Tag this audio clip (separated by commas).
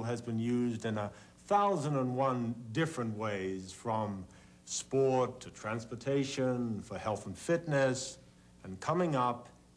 Speech